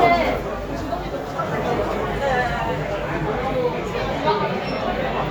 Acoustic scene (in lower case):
crowded indoor space